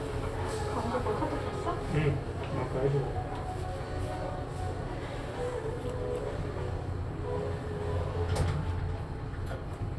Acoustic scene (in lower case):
elevator